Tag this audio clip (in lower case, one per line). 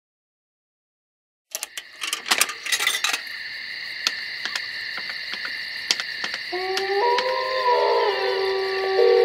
outside, rural or natural